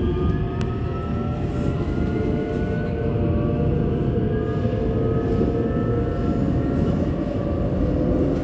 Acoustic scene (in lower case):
subway train